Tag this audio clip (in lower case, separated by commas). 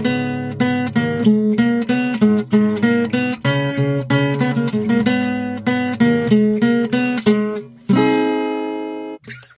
guitar, music, strum, plucked string instrument, musical instrument